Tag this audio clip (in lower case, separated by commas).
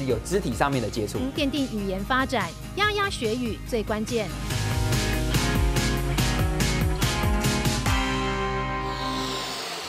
music, speech